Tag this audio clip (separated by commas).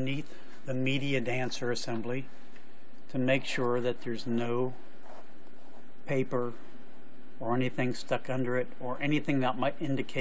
Speech